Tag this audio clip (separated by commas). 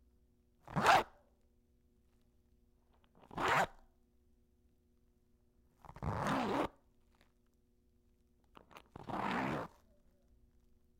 home sounds, Zipper (clothing)